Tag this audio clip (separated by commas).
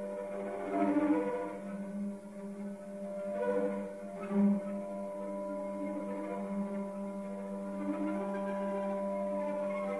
Cello, playing cello, Musical instrument, Music